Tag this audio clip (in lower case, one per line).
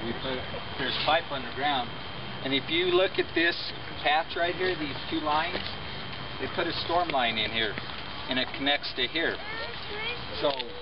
speech